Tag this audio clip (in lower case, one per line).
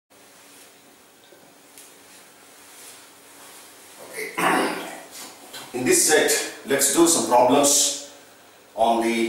speech